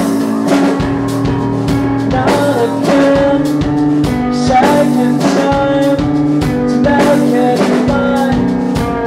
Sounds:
music

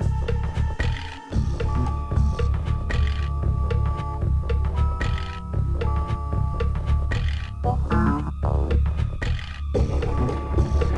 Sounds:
music

